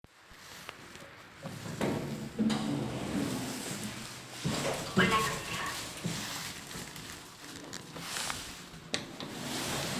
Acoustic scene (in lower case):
elevator